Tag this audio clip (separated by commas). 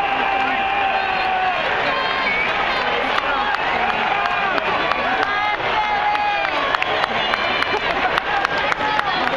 Speech